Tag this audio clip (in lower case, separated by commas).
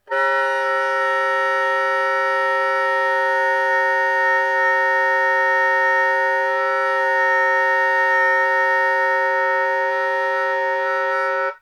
woodwind instrument, music, musical instrument